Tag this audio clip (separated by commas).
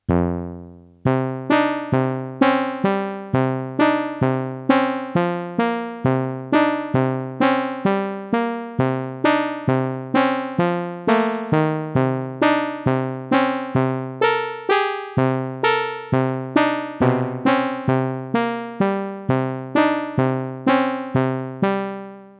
Music, Musical instrument, Keyboard (musical)